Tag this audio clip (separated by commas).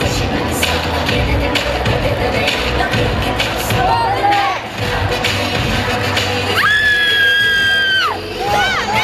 inside a large room or hall, Music, Singing